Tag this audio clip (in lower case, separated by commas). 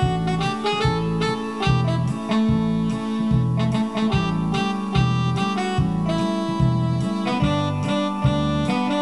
music